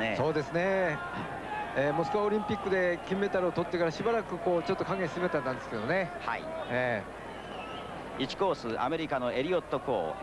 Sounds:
speech

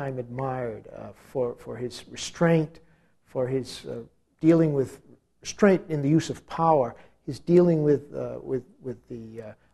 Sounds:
speech

